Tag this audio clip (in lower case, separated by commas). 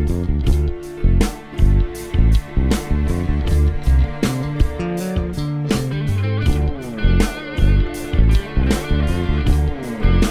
plucked string instrument, guitar, music, electric guitar, strum, musical instrument